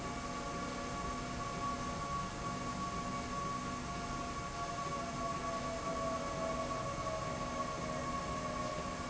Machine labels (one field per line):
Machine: slide rail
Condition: normal